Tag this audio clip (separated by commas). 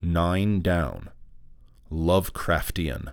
Speech, Human voice, man speaking